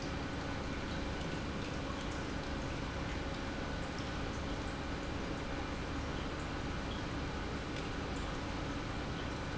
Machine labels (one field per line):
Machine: pump